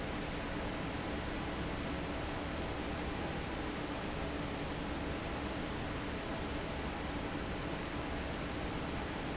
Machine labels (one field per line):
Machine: fan